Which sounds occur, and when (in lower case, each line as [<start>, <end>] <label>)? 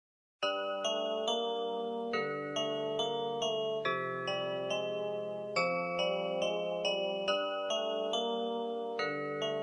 [0.39, 9.62] background noise
[0.39, 9.62] music